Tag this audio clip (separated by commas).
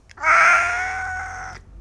Meow, Domestic animals, Animal, Cat